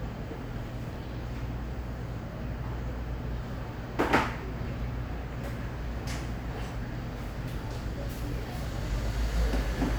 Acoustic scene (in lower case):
cafe